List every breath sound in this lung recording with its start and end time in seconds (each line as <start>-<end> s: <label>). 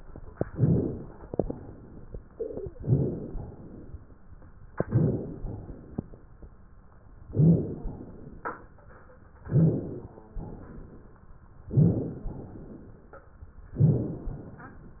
0.46-0.88 s: rhonchi
0.47-1.25 s: inhalation
1.35-2.13 s: exhalation
2.75-3.36 s: inhalation
2.77-3.12 s: rhonchi
3.45-4.21 s: exhalation
4.84-5.43 s: inhalation
4.90-5.25 s: rhonchi
5.43-6.13 s: exhalation
7.27-7.97 s: inhalation
7.32-7.68 s: rhonchi
7.97-8.73 s: exhalation
9.49-9.84 s: rhonchi
9.49-10.25 s: inhalation
10.38-11.23 s: exhalation
11.71-12.28 s: inhalation
11.74-12.10 s: rhonchi
12.28-13.21 s: exhalation
13.79-14.15 s: rhonchi
13.79-14.38 s: inhalation
14.38-15.00 s: exhalation